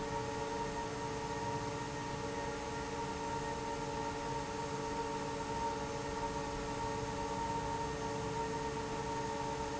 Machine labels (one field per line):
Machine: fan